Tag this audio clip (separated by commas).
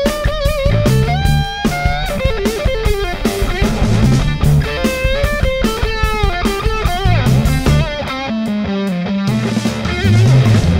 Guitar, playing electric guitar, Electric guitar, Music, Effects unit, Plucked string instrument, Musical instrument